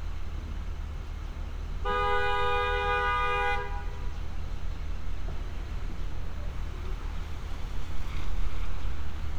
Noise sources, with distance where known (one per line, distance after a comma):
car horn, near